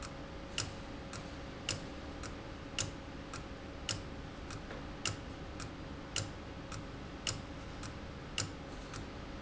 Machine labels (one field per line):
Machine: valve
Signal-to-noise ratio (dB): 0 dB